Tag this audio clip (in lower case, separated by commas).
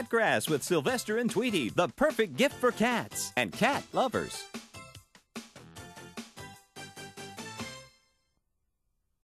speech, music